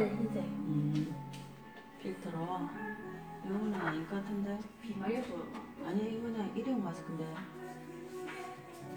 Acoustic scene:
cafe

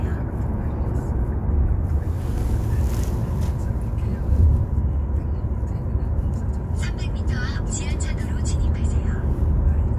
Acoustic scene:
car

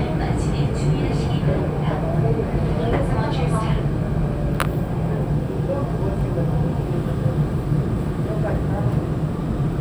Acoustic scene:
subway train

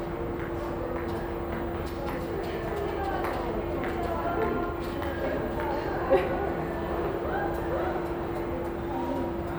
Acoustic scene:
crowded indoor space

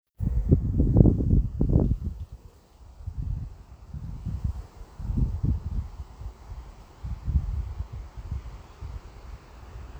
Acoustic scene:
residential area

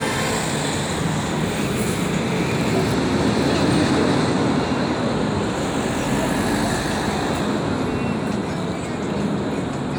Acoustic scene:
street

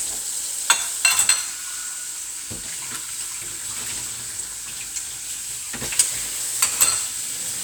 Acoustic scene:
kitchen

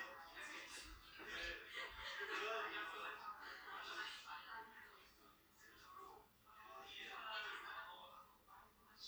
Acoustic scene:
crowded indoor space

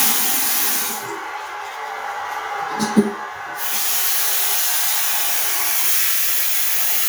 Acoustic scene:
restroom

